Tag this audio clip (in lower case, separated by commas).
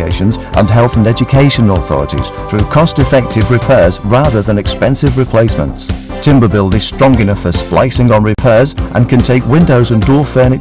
music, speech